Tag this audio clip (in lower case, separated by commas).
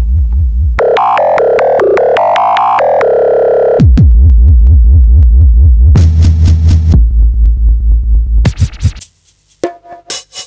sampler, music, musical instrument, synthesizer